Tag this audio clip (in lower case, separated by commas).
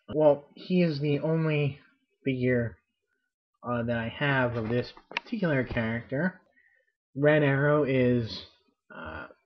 speech